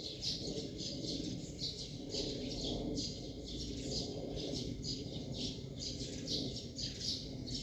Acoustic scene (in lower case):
park